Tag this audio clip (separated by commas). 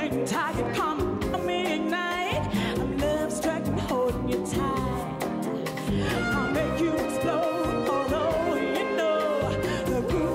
Pop music, Music